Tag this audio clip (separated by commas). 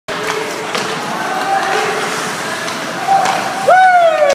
Speech